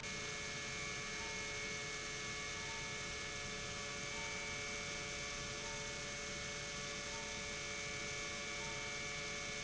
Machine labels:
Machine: pump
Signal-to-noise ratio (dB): 6 dB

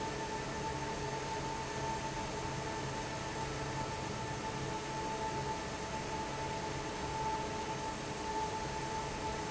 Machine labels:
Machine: fan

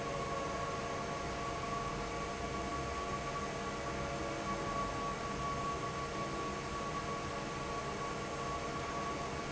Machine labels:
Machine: fan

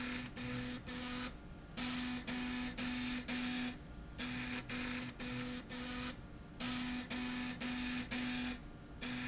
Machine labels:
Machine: slide rail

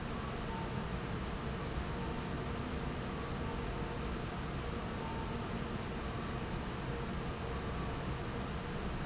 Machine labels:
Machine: fan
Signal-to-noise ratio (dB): -6 dB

